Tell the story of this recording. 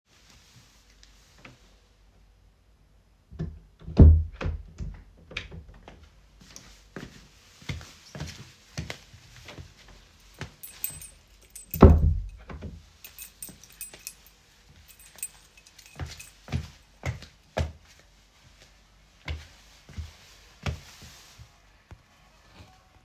The phone was placed on a side table near the entrance. I walked into the room, jingled my keys for several seconds while setting them down, and then closed the door.